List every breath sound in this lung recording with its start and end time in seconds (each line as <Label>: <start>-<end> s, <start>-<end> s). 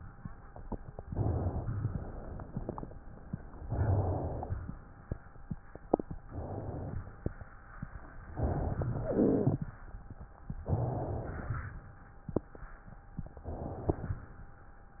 Inhalation: 1.01-1.66 s, 3.59-4.85 s, 6.22-7.00 s, 8.31-9.05 s, 10.64-11.53 s, 13.35-14.11 s
Exhalation: 1.66-2.91 s, 7.01-7.79 s, 9.05-9.84 s, 11.53-12.29 s, 14.18-14.94 s
Wheeze: 9.05-9.84 s